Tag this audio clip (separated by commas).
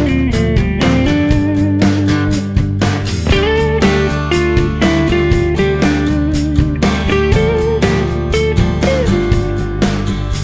Music